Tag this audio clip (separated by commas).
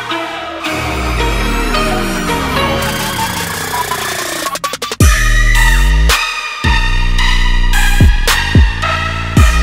Music